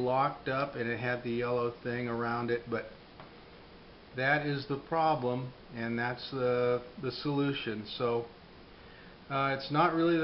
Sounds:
Speech

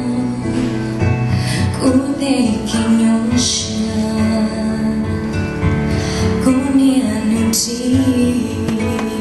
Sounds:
Female singing, Music

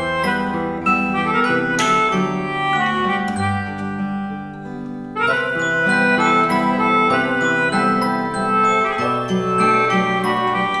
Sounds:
Strum, Electric guitar, Guitar, Acoustic guitar, Plucked string instrument, Music, Musical instrument

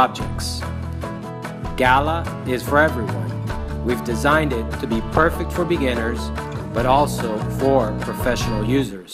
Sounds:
Music, Speech

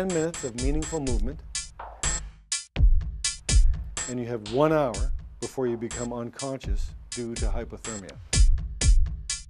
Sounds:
Speech, Music

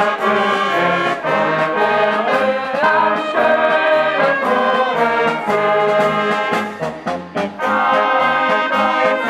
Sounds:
Music

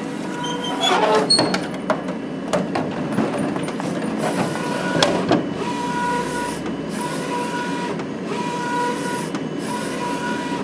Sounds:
Printer, printer printing

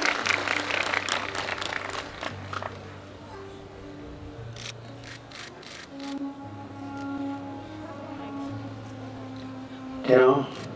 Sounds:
Music, Speech, man speaking

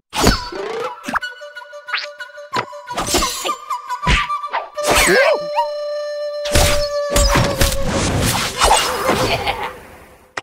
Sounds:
outside, rural or natural, Music

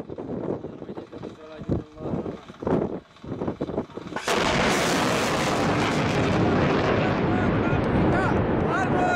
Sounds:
missile launch

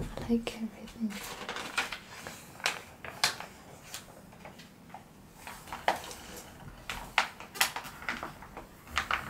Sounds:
inside a small room

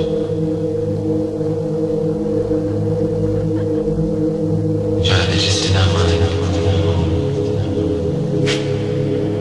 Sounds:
Ambient music, Electronic music, Music

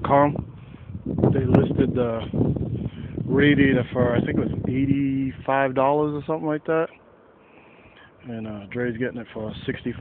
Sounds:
Speech

